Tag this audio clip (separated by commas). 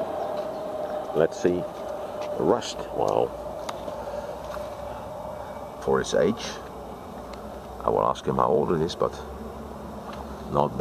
Speech, outside, rural or natural